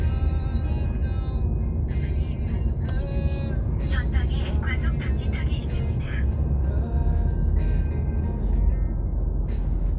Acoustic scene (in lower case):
car